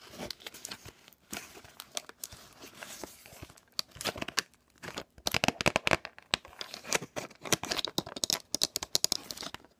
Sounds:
inside a small room

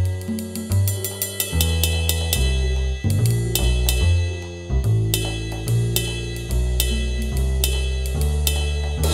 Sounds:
music

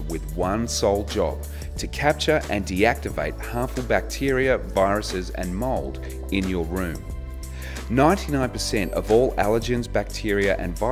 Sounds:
speech, music

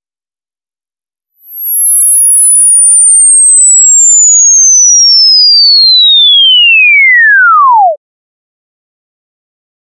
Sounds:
sine wave, chirp tone

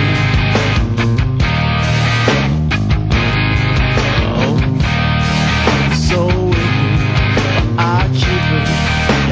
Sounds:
soundtrack music, music

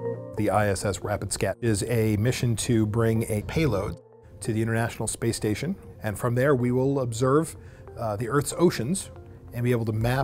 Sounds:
music, speech

